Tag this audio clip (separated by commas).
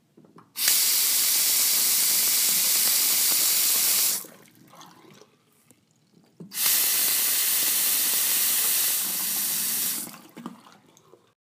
home sounds, Liquid, faucet, Sink (filling or washing)